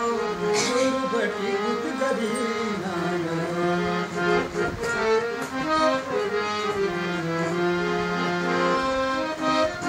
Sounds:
musical instrument, music, accordion, singing

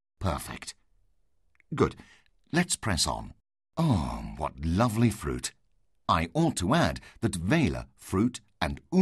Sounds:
speech

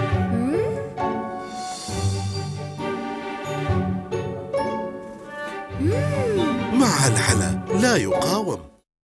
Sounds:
music, speech

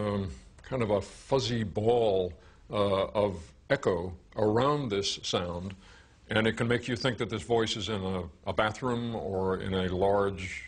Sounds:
speech

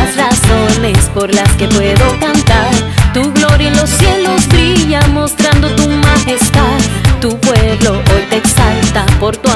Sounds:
music

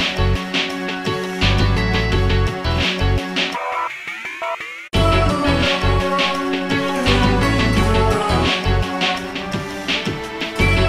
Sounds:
music, video game music, soundtrack music

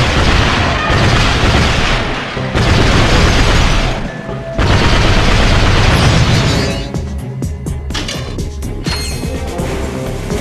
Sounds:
music

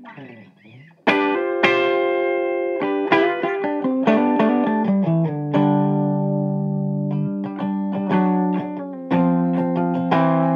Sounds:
inside a small room, music, electronic tuner, musical instrument, plucked string instrument, guitar

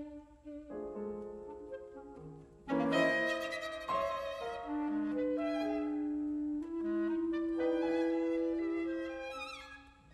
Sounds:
music, violin, musical instrument

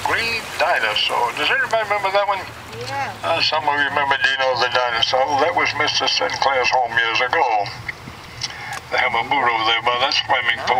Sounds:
speech, sailing ship

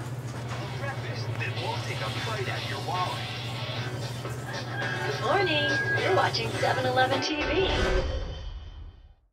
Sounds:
music, speech

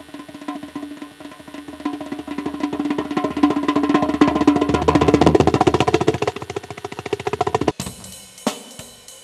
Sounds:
bass drum, tabla, percussion, snare drum, drum, drum kit, rimshot

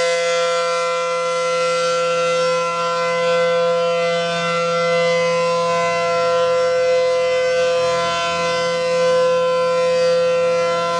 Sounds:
civil defense siren, siren

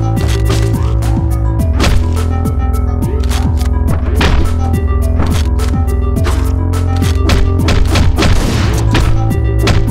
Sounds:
music

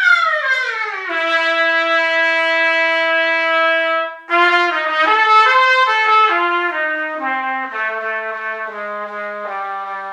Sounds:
trumpet, playing trumpet, musical instrument, music

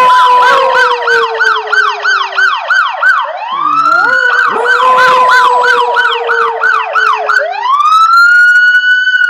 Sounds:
pets, dog, howl

